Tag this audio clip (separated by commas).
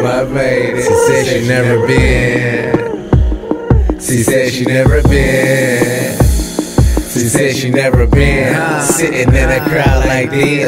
Background music, Music